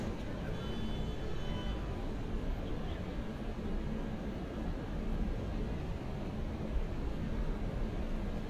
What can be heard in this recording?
car horn, unidentified human voice